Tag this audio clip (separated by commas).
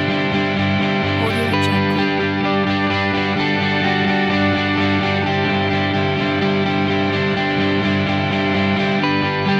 Soundtrack music, Speech, Music